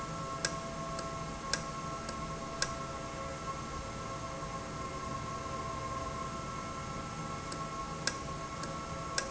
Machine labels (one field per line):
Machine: valve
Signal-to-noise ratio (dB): -6 dB